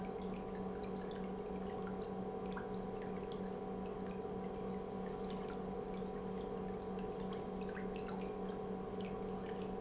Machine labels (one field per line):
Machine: pump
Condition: normal